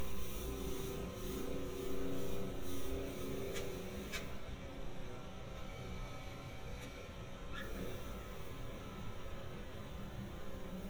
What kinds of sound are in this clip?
small-sounding engine